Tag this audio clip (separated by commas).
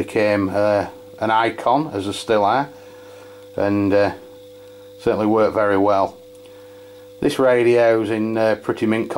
Speech